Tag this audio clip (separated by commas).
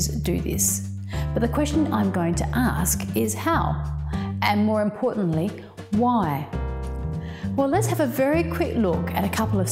Speech, Tender music, Music